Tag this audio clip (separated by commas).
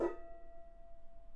Musical instrument, Gong, Music, Percussion